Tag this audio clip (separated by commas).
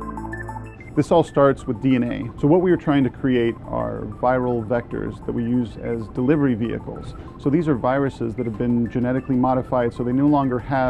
Speech